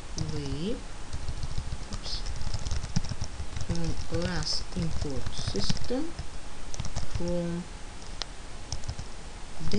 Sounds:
Speech

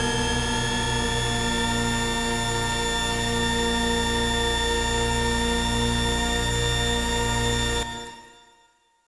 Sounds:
Music

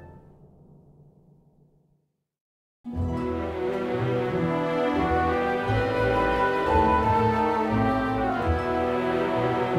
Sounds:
Soul music, Music

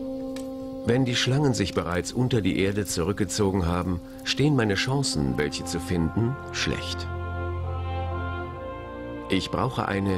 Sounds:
Music, outside, rural or natural, Speech

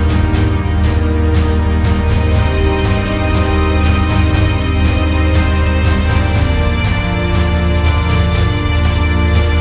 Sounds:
Music

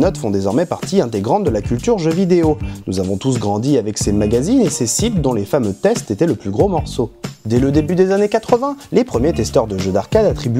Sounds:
Speech

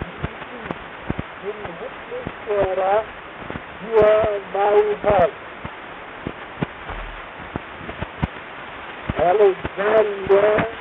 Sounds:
Speech

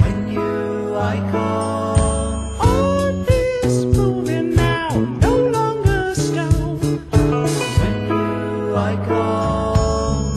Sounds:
Blues, Music

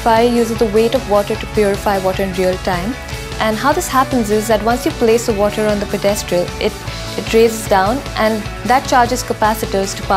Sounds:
Music, Speech

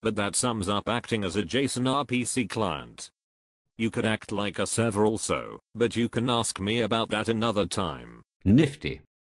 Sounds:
Narration, Speech

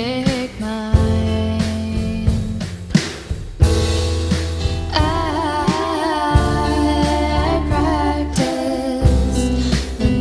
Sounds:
Blues, Music

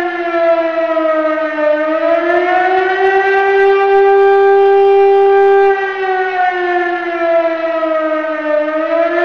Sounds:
Siren, Civil defense siren

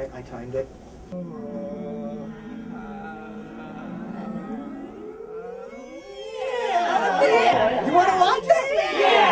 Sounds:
Speech, inside a large room or hall

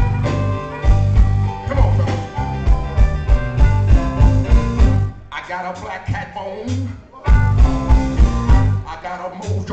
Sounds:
Music, Speech

